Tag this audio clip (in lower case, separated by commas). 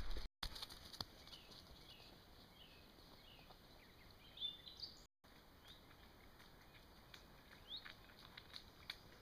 run, outside, rural or natural